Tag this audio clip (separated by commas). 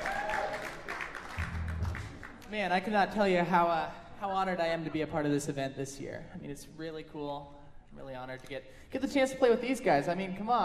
Speech